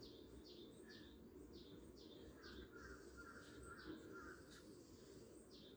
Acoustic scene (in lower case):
park